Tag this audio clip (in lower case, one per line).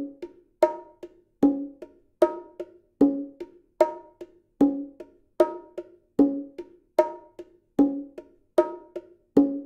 playing bongo